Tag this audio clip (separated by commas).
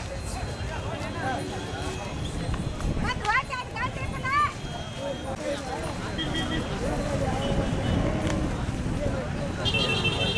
bull bellowing